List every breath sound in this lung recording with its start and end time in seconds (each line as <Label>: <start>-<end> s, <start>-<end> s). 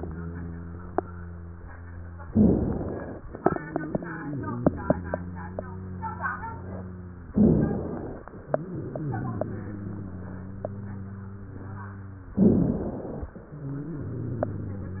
Inhalation: 2.28-3.26 s, 7.34-8.32 s, 12.36-13.34 s
Exhalation: 3.29-7.28 s, 8.38-12.32 s, 13.44-15.00 s
Wheeze: 0.00-2.26 s, 0.00-2.26 s, 3.29-7.28 s, 8.38-12.32 s, 13.44-15.00 s
Rhonchi: 2.28-3.26 s, 7.34-8.32 s, 12.36-13.34 s